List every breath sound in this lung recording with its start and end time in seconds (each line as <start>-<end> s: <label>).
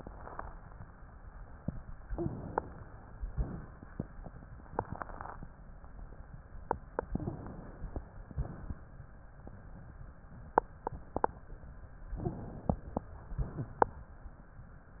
2.06-2.84 s: inhalation
2.08-2.30 s: wheeze
7.10-7.98 s: inhalation
7.16-7.38 s: wheeze
12.14-13.02 s: inhalation
12.18-12.40 s: wheeze